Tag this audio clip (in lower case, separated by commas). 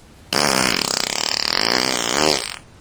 fart